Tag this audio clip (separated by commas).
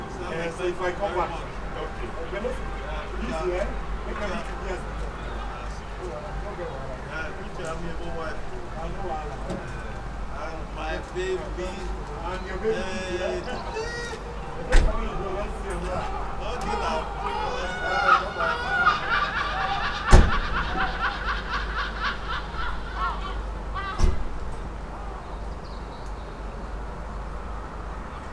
Bird, Wild animals, seagull, Animal